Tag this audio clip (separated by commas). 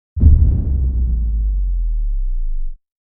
Explosion